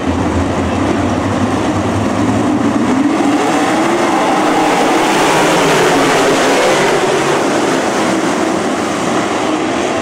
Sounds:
Vehicle, auto racing

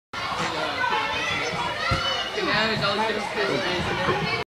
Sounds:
Speech

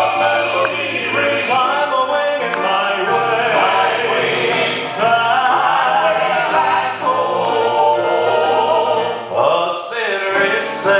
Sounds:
Choir, Music, Singing

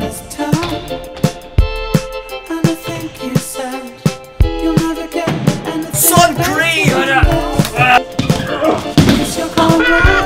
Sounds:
Skateboard, Music, Speech

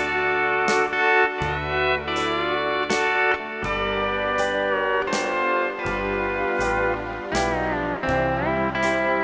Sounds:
Music, Steel guitar

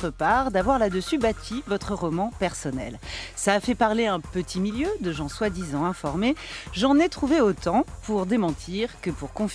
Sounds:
Speech, Music

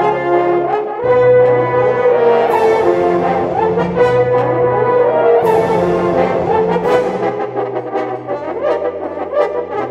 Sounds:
playing french horn

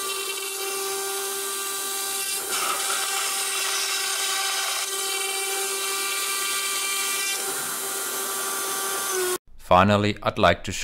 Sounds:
Speech

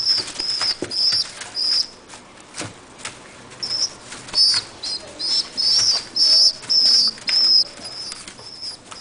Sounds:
Bird, bird call

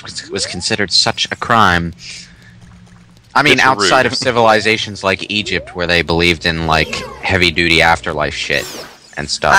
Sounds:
Speech, footsteps

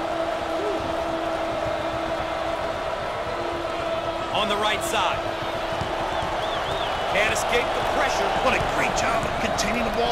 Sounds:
Speech, Basketball bounce

